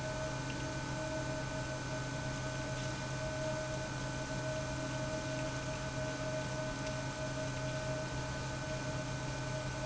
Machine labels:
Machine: pump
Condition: abnormal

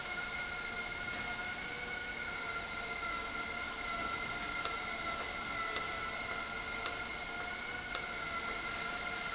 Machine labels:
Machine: valve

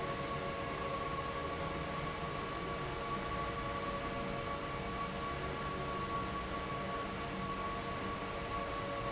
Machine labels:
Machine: fan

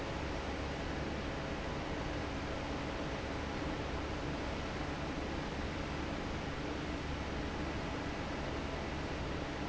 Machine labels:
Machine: fan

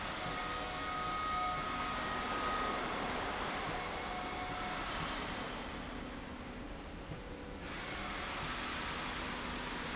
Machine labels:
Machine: slide rail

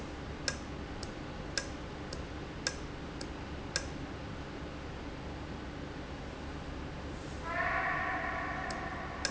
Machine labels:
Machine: valve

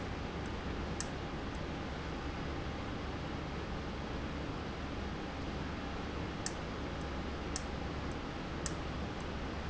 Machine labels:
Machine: valve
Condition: abnormal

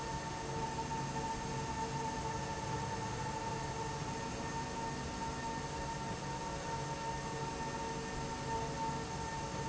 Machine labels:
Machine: slide rail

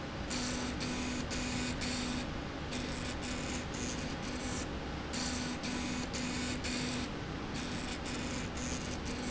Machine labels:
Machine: slide rail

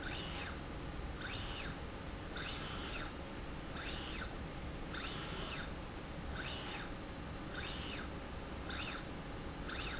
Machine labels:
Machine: slide rail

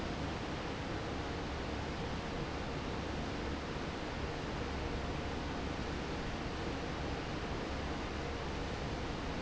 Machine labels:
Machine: fan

